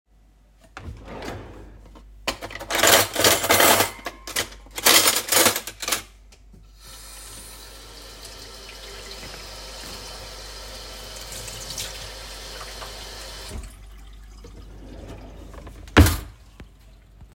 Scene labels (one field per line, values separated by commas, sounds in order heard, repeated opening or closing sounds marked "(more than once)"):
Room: kitchen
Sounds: wardrobe or drawer (more than once), cutlery and dishes, running water